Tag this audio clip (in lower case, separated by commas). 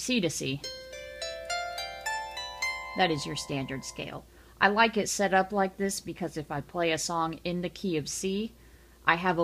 zither, pizzicato